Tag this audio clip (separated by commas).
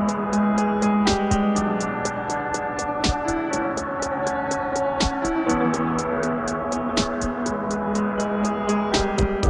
Music, Ambient music